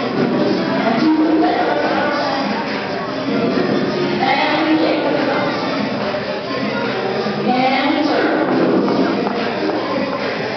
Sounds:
Dance music, Speech, Music

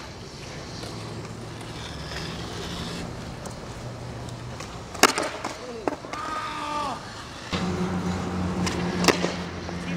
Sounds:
Speech

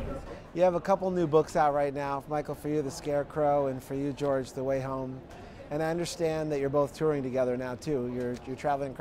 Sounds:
Speech

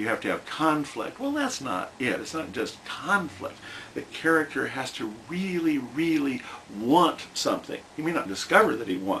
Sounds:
Speech

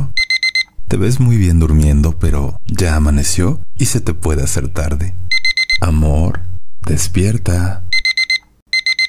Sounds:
alarm clock ringing

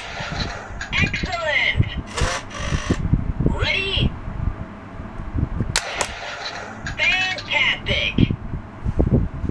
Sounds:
Speech

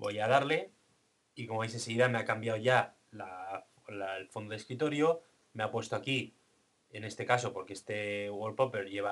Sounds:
Speech

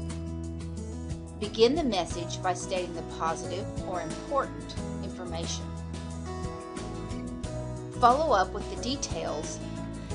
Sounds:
Music, Speech

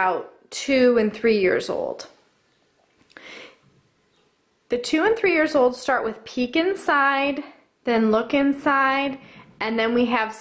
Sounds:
Speech

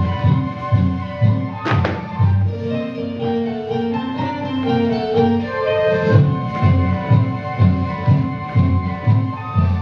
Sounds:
Music

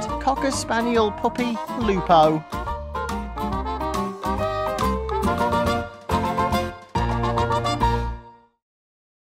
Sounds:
Speech, Music

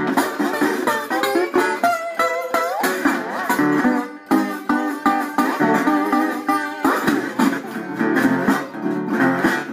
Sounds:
slide guitar

